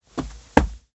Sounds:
footsteps

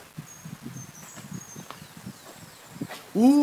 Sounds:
wild animals, bird, animal

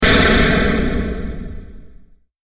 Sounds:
explosion

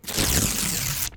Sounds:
tearing

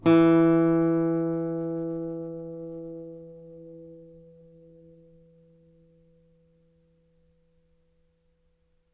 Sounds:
musical instrument, music, guitar, plucked string instrument

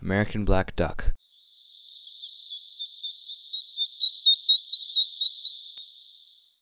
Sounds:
animal, bird call, bird, wild animals

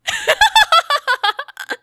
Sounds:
human voice, laughter

